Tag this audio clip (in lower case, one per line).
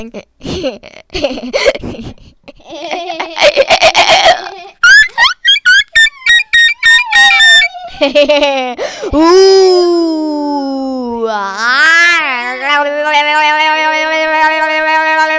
laughter
human voice